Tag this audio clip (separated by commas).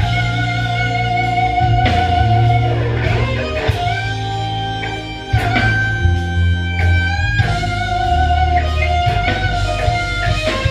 Musical instrument, Music, Plucked string instrument, Blues, Guitar